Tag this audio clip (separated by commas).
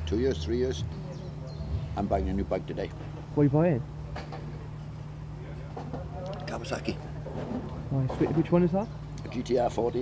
Speech, outside, urban or man-made